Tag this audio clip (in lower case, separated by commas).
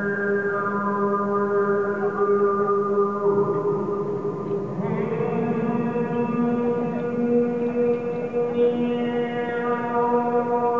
male singing